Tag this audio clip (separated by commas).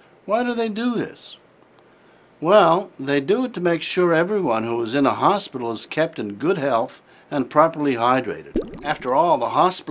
Speech, Drip